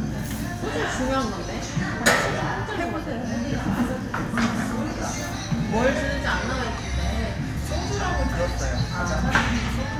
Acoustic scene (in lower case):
restaurant